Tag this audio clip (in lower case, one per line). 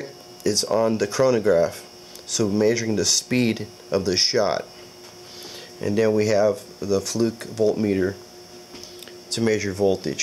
speech